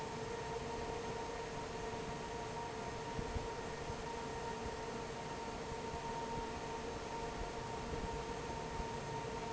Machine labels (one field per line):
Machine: fan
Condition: normal